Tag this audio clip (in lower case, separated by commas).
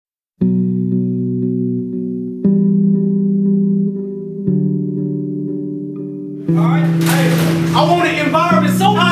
music, speech